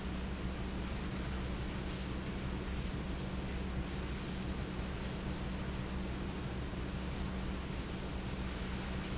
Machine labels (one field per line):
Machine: pump